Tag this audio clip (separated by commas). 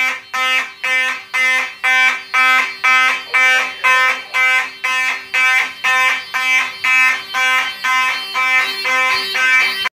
Buzzer